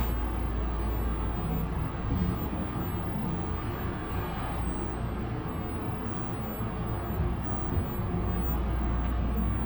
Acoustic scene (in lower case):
bus